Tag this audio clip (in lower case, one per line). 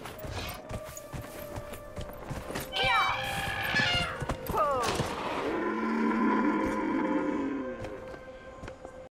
speech